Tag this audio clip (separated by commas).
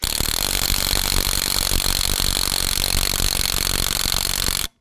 Tools